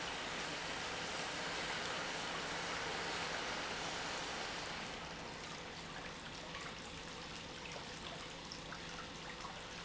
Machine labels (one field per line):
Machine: pump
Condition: normal